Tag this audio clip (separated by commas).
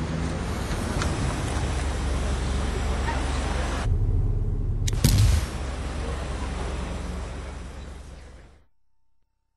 Motor vehicle (road), Car passing by, Speech, Vehicle, Car